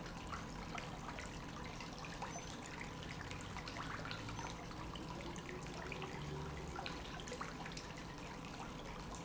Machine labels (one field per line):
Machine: pump